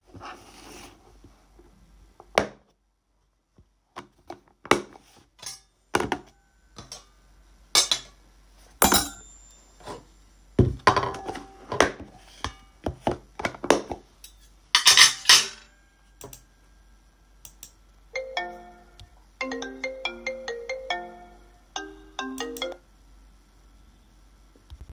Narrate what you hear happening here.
I was handling dishes and cutlery when the phone started ringing, and a mouse click was also audible.